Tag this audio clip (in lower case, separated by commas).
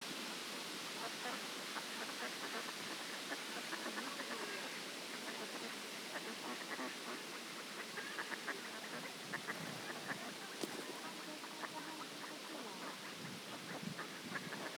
fowl, livestock, animal